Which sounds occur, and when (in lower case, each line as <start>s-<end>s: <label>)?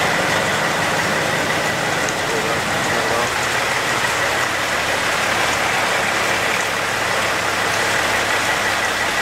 0.0s-9.2s: wind
0.0s-9.2s: truck
1.6s-3.5s: man speaking